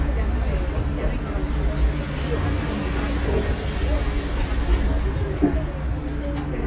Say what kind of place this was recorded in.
bus